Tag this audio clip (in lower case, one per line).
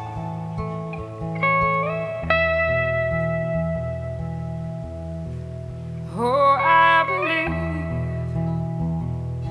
steel guitar
singing
music
inside a small room